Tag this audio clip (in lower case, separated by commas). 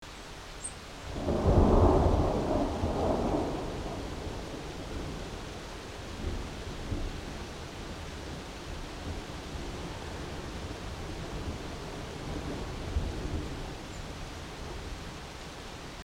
rain, thunder, water, thunderstorm